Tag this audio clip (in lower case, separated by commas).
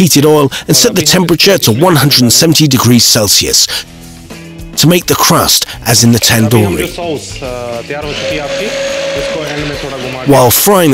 speech, inside a small room, music